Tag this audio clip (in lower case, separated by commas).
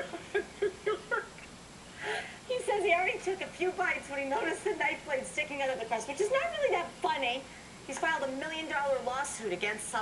speech, laughter